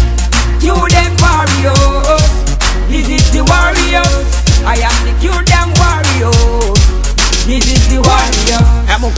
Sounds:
music

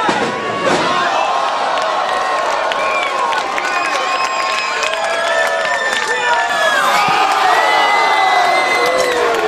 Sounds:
inside a public space

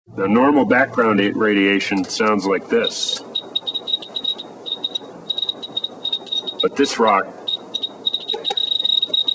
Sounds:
speech

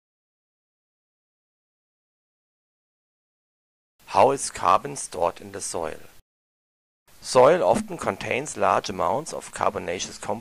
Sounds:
speech

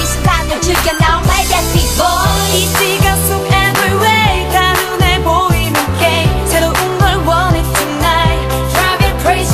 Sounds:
music
music of asia

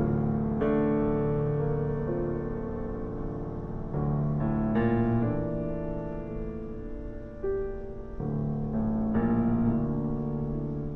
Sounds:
music

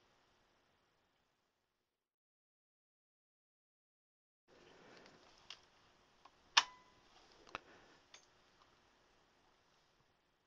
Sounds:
silence

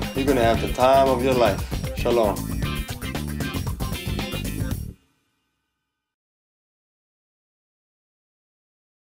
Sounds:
music
speech

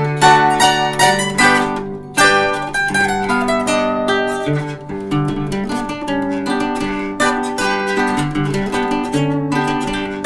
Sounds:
playing zither

